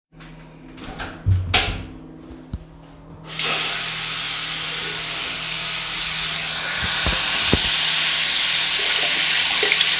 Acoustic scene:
restroom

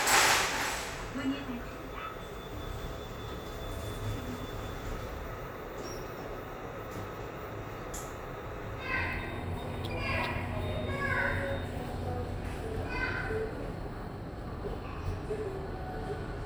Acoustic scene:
elevator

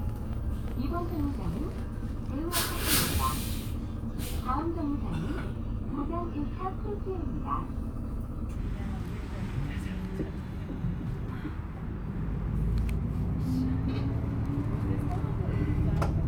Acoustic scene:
bus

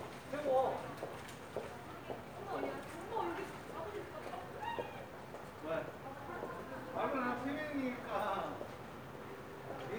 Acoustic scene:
residential area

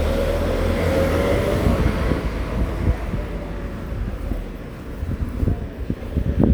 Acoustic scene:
residential area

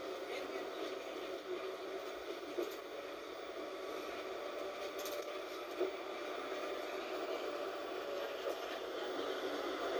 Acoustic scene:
bus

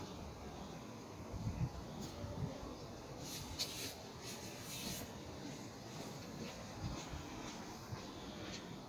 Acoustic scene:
park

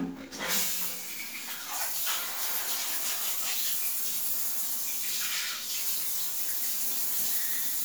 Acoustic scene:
restroom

